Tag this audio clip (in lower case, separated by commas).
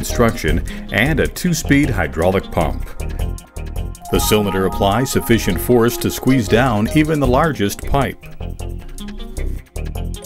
music, speech